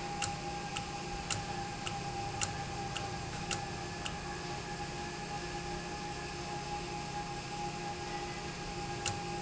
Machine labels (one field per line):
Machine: valve